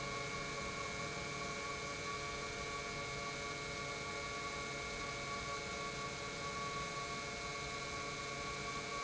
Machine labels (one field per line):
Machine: pump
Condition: normal